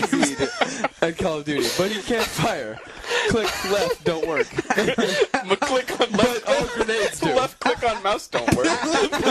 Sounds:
speech

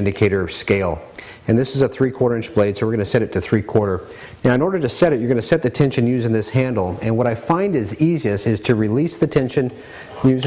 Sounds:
speech

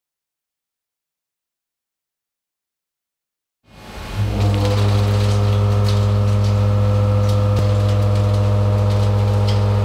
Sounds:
tools

